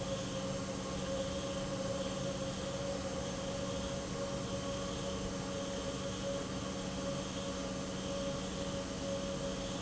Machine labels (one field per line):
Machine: pump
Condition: normal